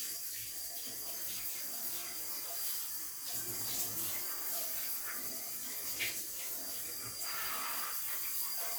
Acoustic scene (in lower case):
restroom